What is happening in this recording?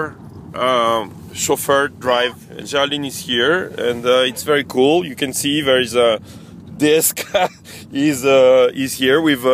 He is speaking